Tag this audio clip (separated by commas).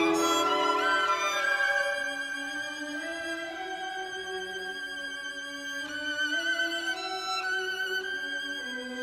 Musical instrument, fiddle, Music